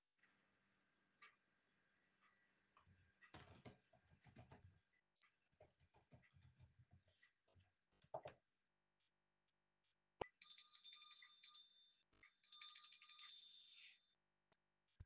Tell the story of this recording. I was typing on my laptop keyboard when a bell suddenly started ringing.